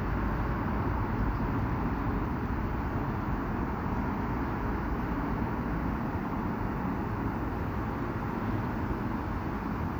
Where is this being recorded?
on a street